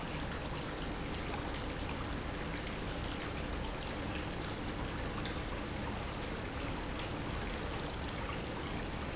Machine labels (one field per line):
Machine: pump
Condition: normal